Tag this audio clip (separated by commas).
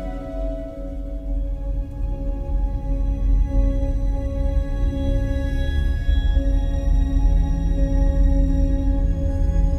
Music